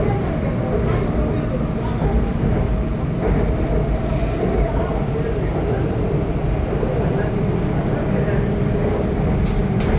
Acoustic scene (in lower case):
subway train